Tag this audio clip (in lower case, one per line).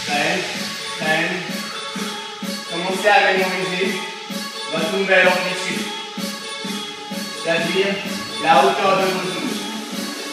music
speech